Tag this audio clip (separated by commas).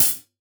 Cymbal, Percussion, Musical instrument, Hi-hat, Music